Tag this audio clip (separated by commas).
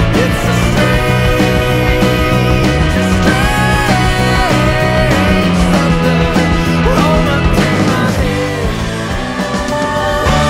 Music